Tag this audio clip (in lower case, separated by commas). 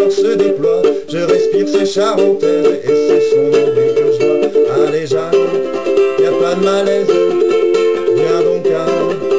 ukulele, music, inside a small room